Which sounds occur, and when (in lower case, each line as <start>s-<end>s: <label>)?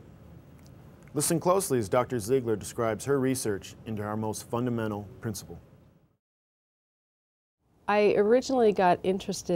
0.0s-6.2s: background noise
0.6s-0.6s: clicking
1.0s-1.0s: clicking
1.1s-3.7s: man speaking
3.8s-5.0s: man speaking
5.2s-5.5s: man speaking
7.6s-9.5s: background noise
7.9s-9.5s: female speech